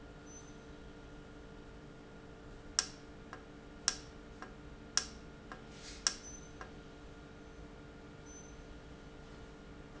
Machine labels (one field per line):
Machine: valve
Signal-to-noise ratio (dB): 6 dB